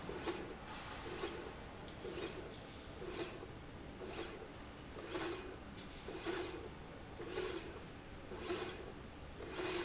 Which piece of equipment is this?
slide rail